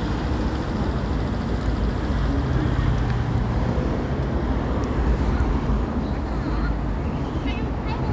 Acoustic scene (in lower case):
residential area